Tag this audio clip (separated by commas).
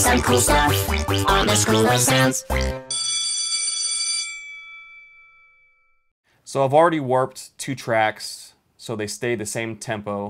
Sound effect, Music, Speech